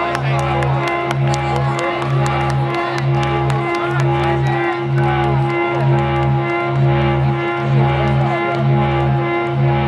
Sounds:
speech

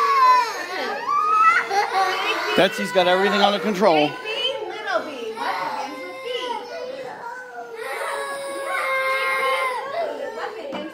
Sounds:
infant cry, speech

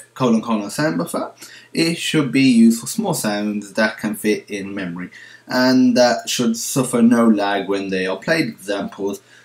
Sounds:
speech

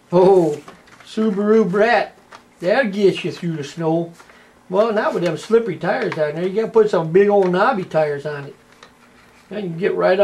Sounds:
speech, inside a small room

